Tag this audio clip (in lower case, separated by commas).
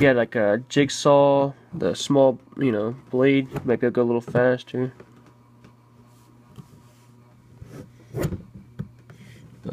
speech